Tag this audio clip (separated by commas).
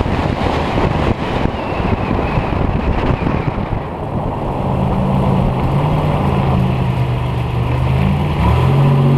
outside, urban or man-made, Vehicle, Car